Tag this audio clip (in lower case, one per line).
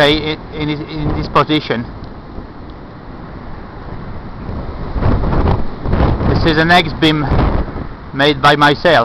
speech
wind noise (microphone)